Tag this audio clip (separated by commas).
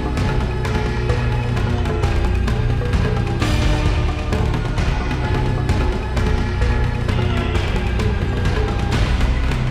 Soundtrack music, Background music, Music